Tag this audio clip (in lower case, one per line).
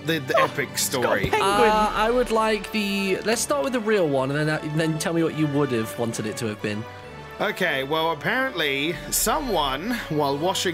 music
speech